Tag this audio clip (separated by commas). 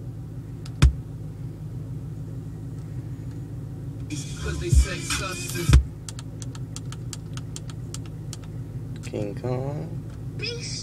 Speech, Music